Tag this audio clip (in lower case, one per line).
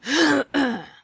cough
respiratory sounds
human voice